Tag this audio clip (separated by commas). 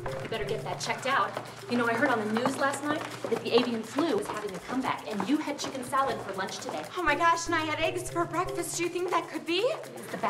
Speech, Music